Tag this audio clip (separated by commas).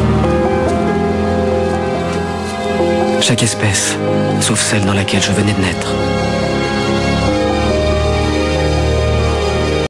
outside, rural or natural, Speech, Music